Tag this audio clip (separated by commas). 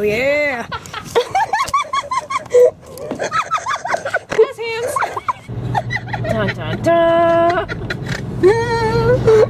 Vehicle, Car, Speech